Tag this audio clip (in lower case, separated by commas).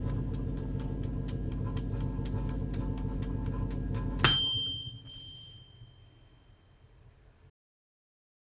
microwave oven, home sounds